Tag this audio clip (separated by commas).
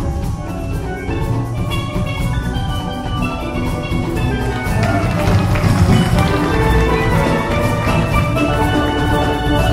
Musical instrument, Music, Steelpan